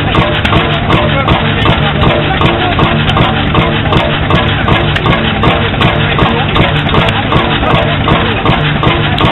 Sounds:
Engine, Heavy engine (low frequency)

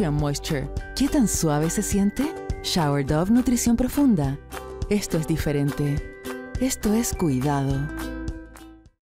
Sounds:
Music, Speech

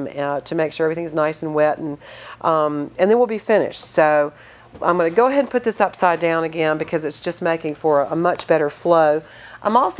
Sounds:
Speech

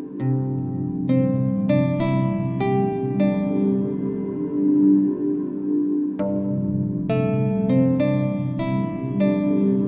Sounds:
Soul music, Music, New-age music, Jazz

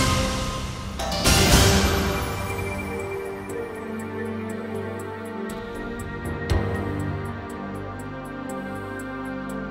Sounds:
Music

